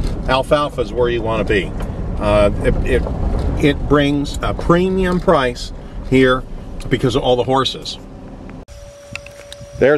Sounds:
speech

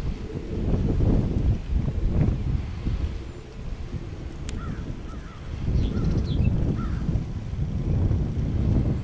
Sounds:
outside, rural or natural

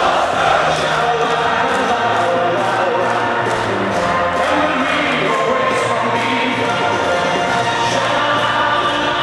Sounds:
music
male singing

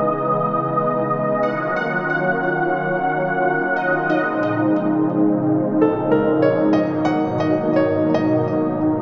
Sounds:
ambient music
music

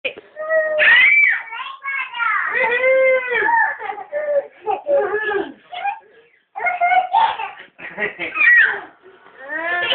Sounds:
speech

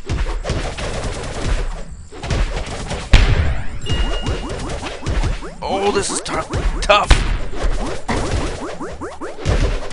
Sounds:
whack

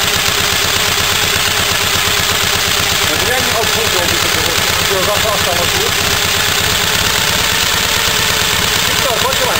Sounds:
speech
vehicle
engine
motorcycle
outside, urban or man-made

